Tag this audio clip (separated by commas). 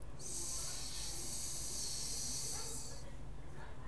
Hiss